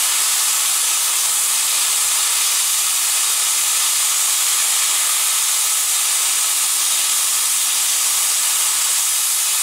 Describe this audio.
Steam is releasing from an engine